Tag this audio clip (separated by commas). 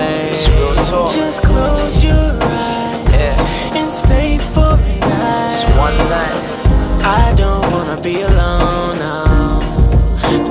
Music